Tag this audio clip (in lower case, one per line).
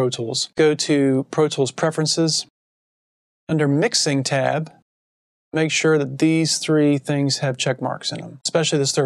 speech